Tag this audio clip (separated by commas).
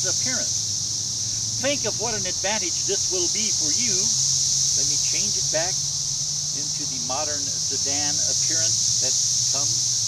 Speech, Vehicle, Car